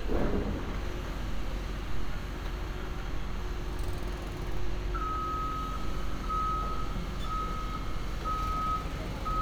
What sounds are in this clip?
reverse beeper